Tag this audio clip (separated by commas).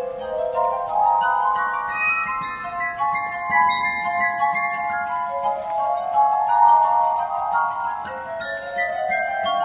Music, Glass, Musical instrument